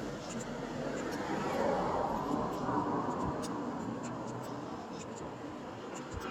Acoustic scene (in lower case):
street